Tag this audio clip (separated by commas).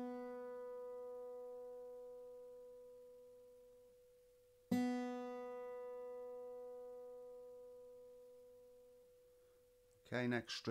Guitar, Musical instrument, Speech, Plucked string instrument, Music